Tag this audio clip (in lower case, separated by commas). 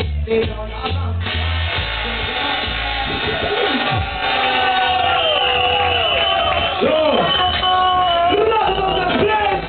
music, speech